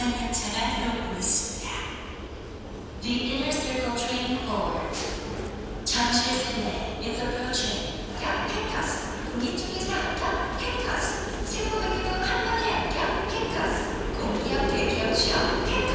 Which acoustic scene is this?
subway station